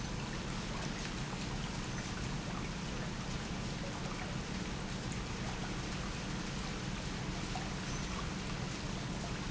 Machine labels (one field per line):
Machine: pump